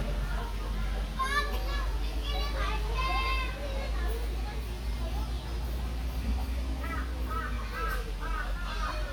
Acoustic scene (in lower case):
park